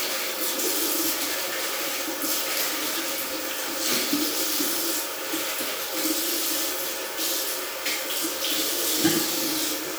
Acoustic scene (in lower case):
restroom